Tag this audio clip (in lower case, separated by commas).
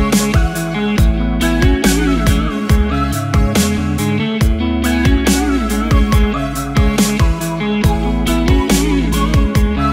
dubstep, music, electronic music